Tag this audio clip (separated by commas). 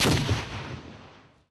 Explosion